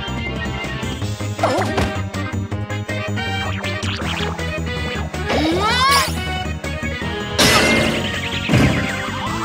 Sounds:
music

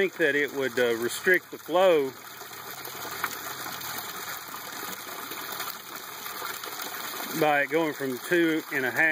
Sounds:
gush, speech

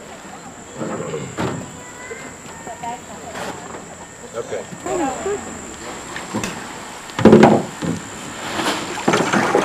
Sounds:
boat, vehicle, speech

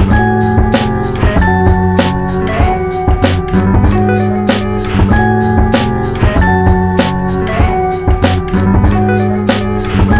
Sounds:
music

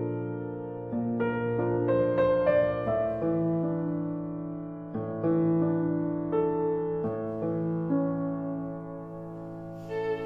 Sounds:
music, musical instrument

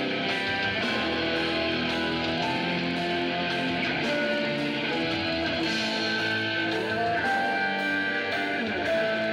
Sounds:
strum, electric guitar, acoustic guitar, music, plucked string instrument, musical instrument, guitar, playing electric guitar

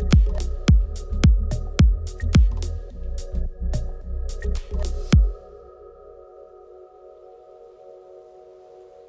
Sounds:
house music, electronic music, music, trance music

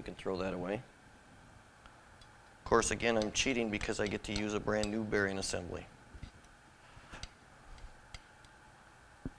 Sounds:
speech

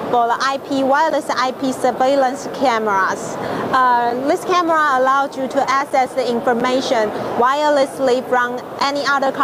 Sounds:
speech

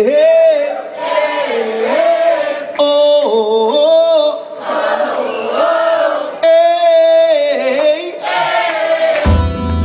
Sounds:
music, inside a large room or hall, singing

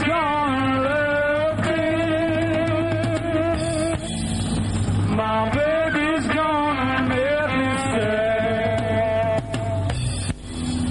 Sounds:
music, musical instrument, blues, singing, guitar

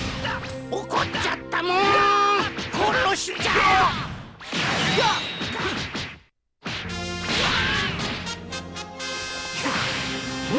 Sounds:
music, speech

